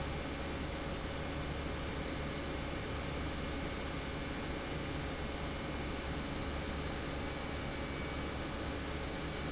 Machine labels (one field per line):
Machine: pump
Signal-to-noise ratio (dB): -6 dB